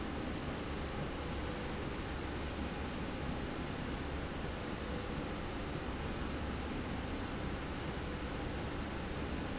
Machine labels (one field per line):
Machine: slide rail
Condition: normal